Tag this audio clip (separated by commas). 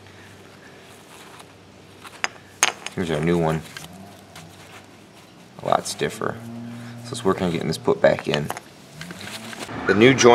Speech, outside, urban or man-made